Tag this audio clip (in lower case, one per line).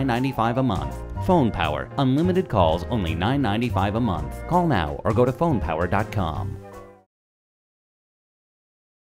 music
speech